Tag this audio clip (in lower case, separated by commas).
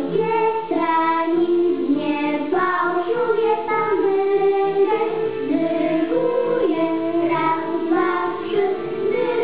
female singing, music, music for children, singing